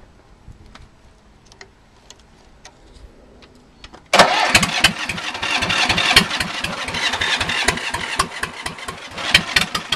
A vehicle engine attempts to start